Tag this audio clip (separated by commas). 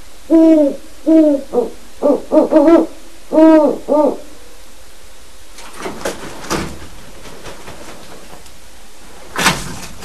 owl hooting